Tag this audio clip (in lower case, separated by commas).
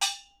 musical instrument, music, percussion, gong